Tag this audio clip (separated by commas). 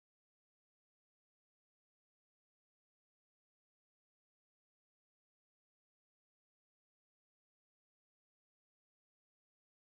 Silence